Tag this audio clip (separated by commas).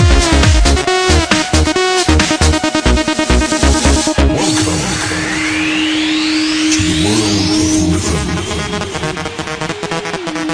Music, Electronic music, Techno